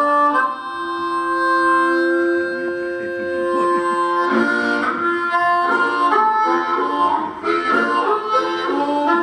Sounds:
Harmonica, Speech, Music

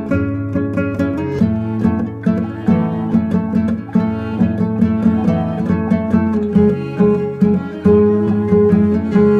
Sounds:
Music

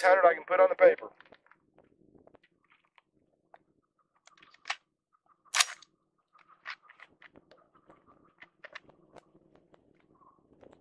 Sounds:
outside, rural or natural, Speech

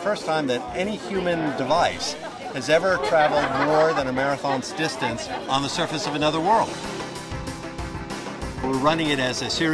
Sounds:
Speech, Music, outside, urban or man-made

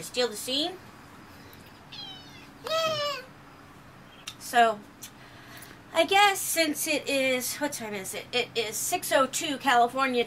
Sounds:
Cat, inside a small room, Speech

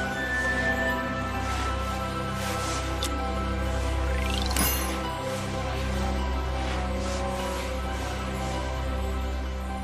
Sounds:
Music

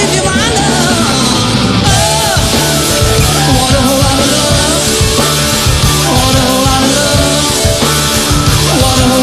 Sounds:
Singing, Punk rock, Heavy metal, Music

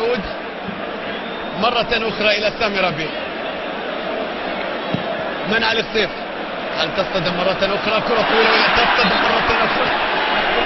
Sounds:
Speech

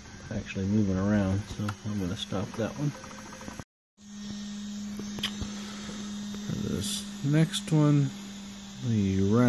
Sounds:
Printer, Speech

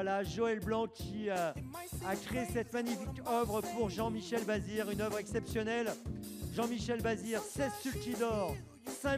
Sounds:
Music, Speech

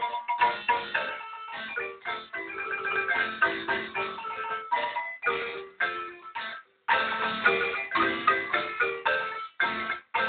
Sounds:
Percussion, Music, Marimba, Musical instrument

